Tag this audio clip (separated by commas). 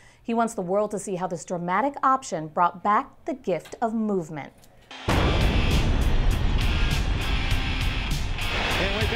Music, Speech